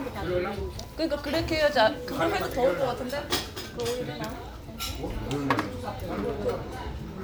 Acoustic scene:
restaurant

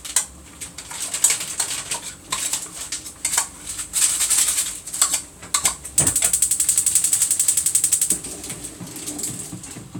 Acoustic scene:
kitchen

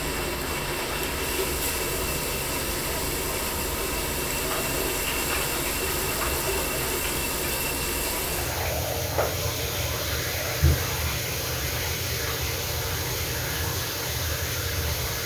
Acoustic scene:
restroom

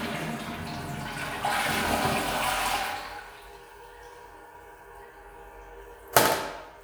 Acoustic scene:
restroom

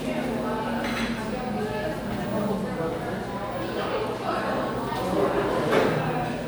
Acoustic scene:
crowded indoor space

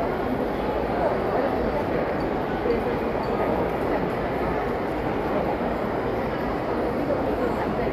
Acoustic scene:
crowded indoor space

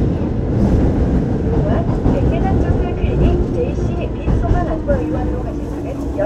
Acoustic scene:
subway train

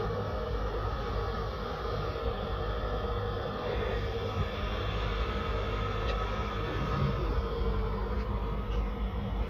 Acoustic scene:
residential area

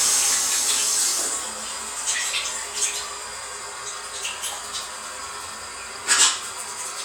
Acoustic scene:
restroom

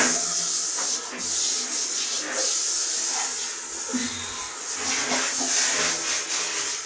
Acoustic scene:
restroom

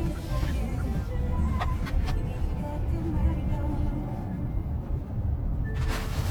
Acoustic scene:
car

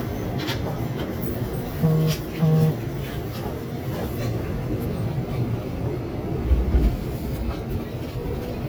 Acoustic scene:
subway train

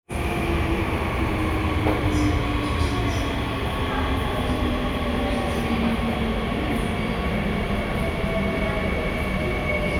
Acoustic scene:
subway station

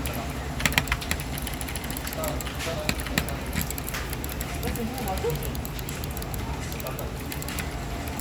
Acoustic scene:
crowded indoor space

